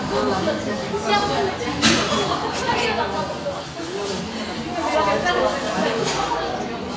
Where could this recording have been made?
in a cafe